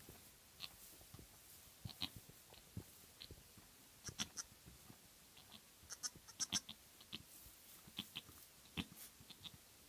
Animals are softly bleating